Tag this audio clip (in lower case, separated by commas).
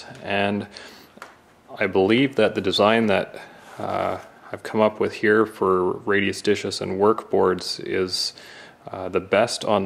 speech